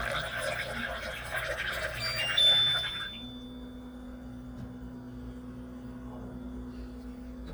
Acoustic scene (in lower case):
kitchen